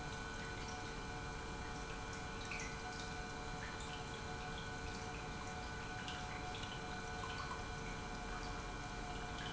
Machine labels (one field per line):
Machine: pump